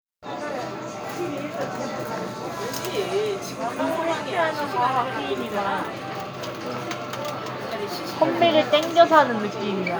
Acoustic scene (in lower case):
crowded indoor space